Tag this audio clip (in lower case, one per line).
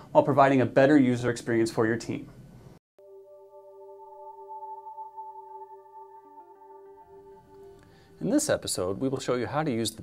speech